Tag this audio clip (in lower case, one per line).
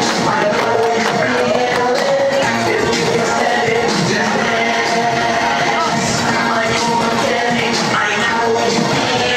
people shuffling